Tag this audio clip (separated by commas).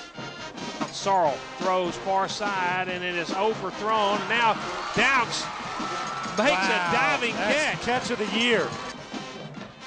Speech, Music